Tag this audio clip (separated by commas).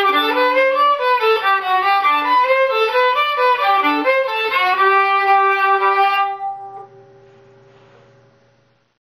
playing violin, Musical instrument, Music, fiddle